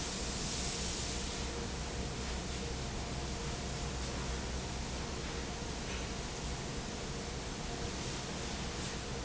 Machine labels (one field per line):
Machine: fan